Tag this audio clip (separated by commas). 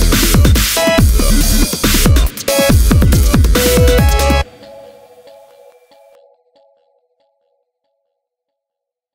Dubstep, Music